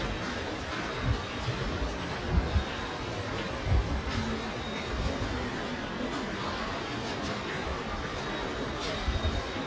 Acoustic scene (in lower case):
subway station